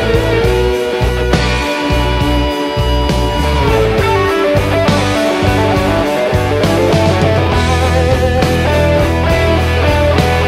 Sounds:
music

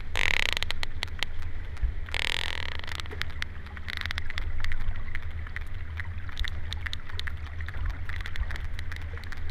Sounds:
whale calling

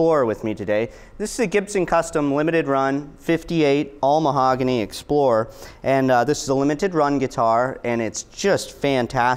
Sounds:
speech

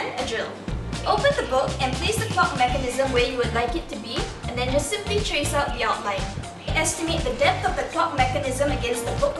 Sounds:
speech, music

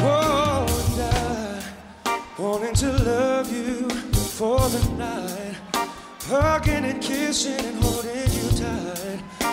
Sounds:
music

